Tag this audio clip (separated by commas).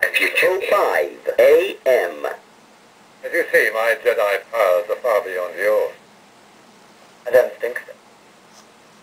Speech